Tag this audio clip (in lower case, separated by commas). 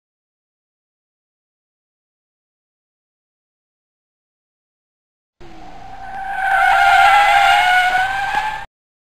car, silence, vehicle